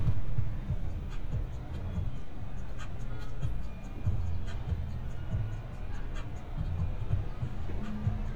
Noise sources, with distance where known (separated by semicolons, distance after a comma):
car horn; music from an unclear source